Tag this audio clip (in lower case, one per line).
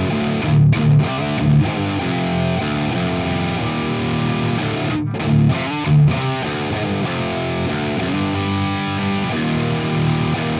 music